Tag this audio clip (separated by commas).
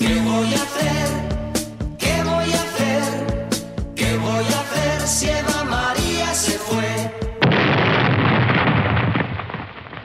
Explosion, Music